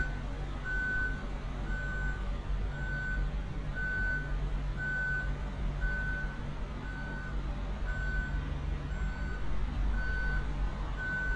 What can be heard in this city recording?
reverse beeper